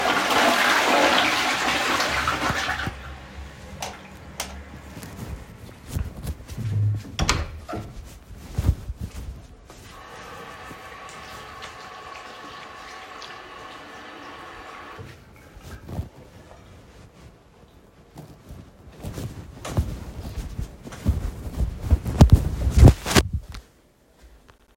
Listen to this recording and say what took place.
I flushed the toilet, turned off the light and closed the door. Then I went to the bathroom washed my hand and wiped my hand with a towel.